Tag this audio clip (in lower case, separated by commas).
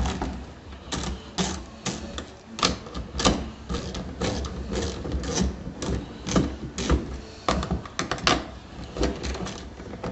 door